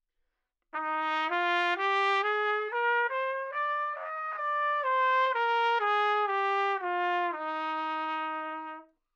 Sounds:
trumpet
music
musical instrument
brass instrument

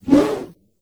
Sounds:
whoosh

